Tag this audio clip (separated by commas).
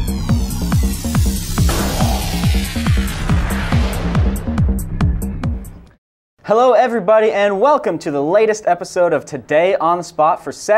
Speech, Trance music, Techno, Music